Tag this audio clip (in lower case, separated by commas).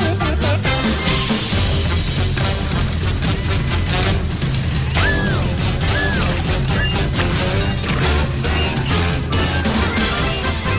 music